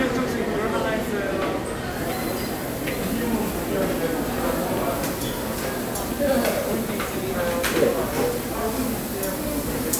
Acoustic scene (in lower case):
restaurant